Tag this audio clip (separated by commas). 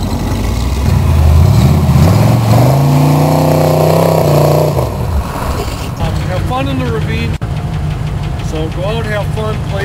Speech